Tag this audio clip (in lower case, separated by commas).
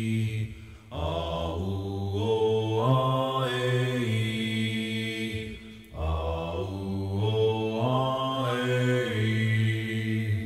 mantra